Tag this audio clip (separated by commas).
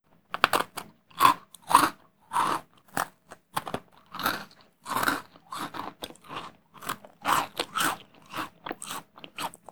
Chewing